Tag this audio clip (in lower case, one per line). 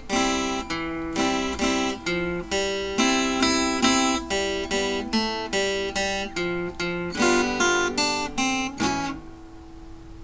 music
guitar
strum
musical instrument
plucked string instrument